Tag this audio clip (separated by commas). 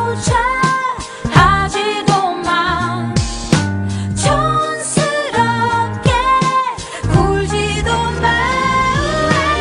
Music